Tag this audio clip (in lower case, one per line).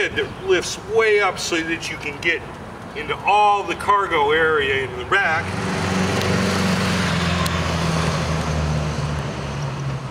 speech
motorcycle
vehicle